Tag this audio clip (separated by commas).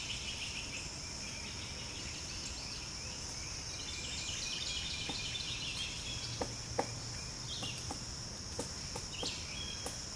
woodpecker pecking tree